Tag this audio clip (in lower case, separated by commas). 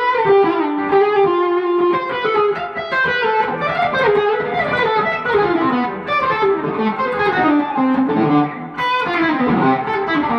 tapping (guitar technique), music, plucked string instrument, guitar, musical instrument, inside a small room